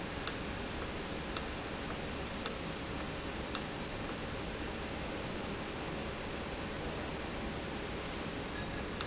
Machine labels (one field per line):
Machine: valve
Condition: normal